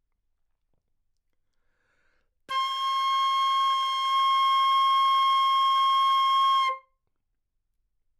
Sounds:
wind instrument, musical instrument, music

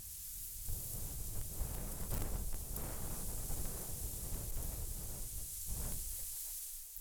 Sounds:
wind

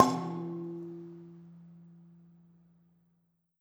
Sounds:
musical instrument, music, percussion

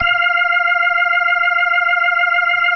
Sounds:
music, keyboard (musical), musical instrument, organ

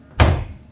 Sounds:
home sounds, door, slam

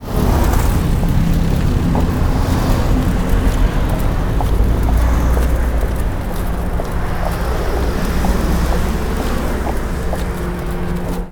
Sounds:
footsteps

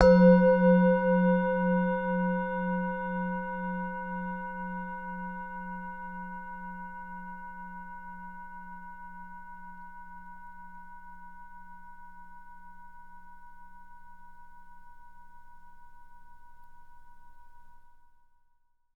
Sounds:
music, musical instrument

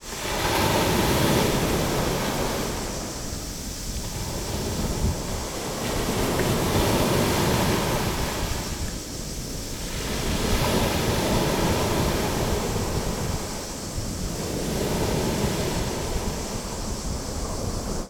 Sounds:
ocean, water, waves

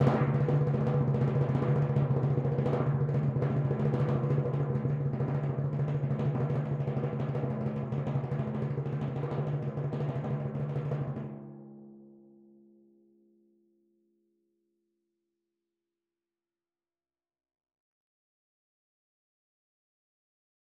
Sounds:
music, percussion, musical instrument, drum

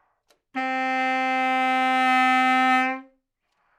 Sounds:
music, woodwind instrument, musical instrument

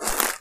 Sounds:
crushing

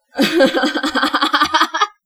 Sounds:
laughter, human voice

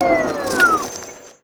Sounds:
engine

